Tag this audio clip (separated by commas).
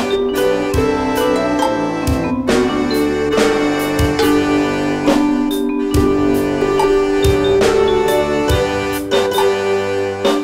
Music